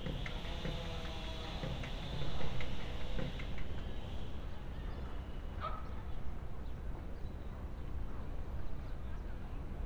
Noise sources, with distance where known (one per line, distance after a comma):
small-sounding engine
dog barking or whining